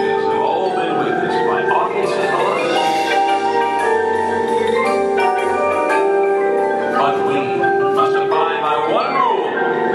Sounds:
Music, Percussion, Speech

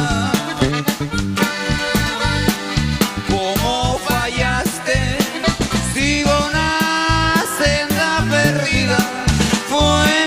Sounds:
Music

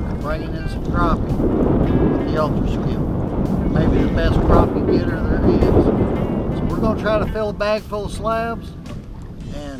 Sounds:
Music, Speech

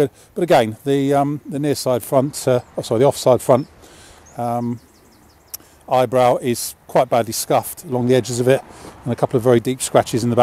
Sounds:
Speech

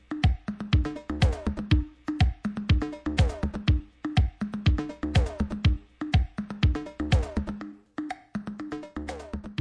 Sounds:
Electronica, Music

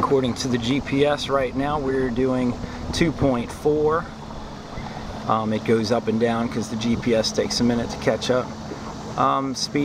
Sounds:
sailing ship, Speech

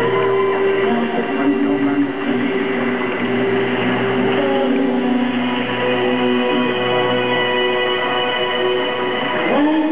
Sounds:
Music, Jazz

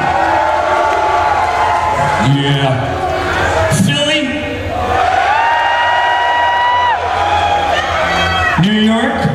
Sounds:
Speech

